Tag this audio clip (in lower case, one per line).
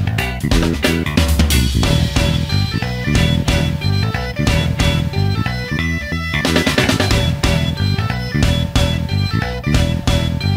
music